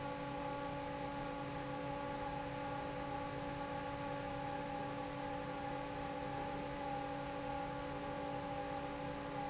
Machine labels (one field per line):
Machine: fan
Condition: normal